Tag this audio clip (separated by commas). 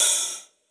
Music, Hi-hat, Percussion, Cymbal, Musical instrument